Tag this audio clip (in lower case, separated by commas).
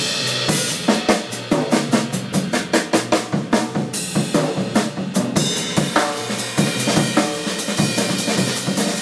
snare drum, percussion, drum, bass drum, drum kit, rimshot